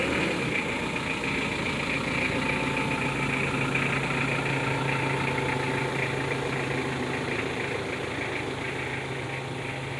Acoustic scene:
residential area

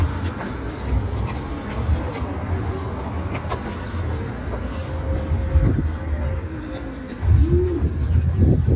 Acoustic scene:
street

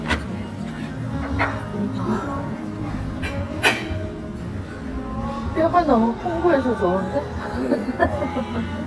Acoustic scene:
restaurant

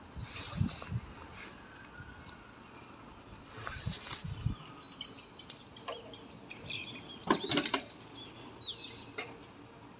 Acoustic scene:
residential area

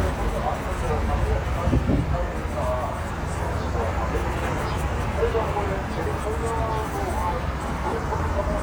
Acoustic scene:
street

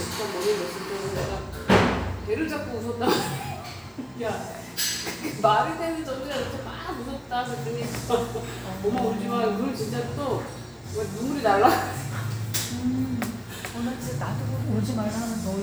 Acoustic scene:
cafe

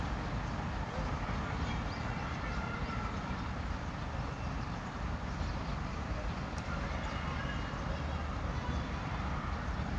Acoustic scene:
residential area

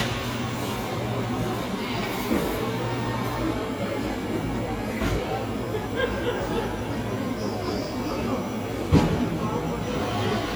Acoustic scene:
cafe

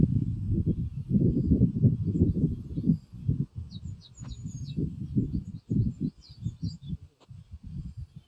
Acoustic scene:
park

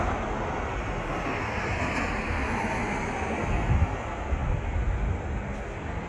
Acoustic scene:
street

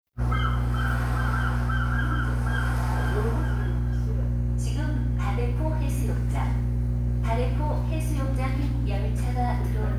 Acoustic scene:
subway station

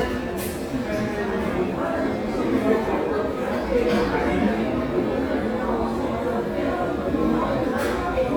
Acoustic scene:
crowded indoor space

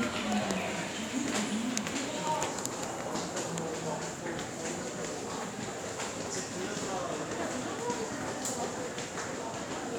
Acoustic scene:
subway station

